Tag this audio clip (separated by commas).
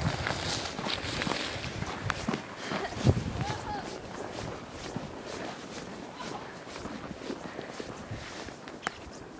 Speech